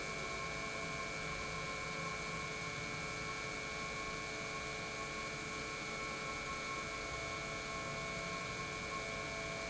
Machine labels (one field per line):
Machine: pump